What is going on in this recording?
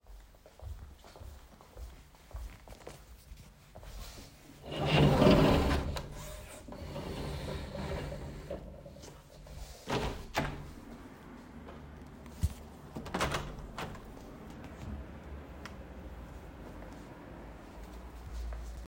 I walked over to the window and opened the blinds, then I opened the windows.